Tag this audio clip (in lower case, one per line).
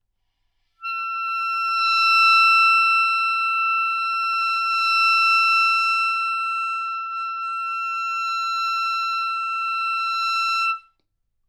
music
musical instrument
woodwind instrument